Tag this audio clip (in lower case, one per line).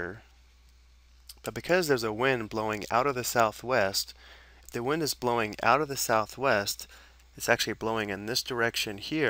speech